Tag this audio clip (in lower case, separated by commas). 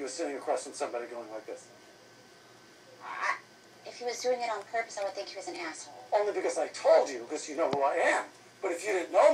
speech